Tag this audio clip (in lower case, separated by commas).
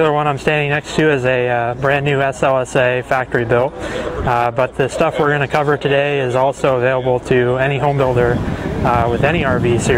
speech